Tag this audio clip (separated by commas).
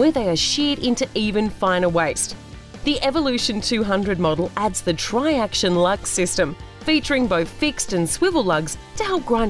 Music, Speech